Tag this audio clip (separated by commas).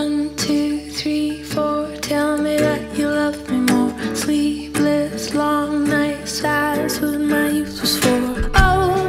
Music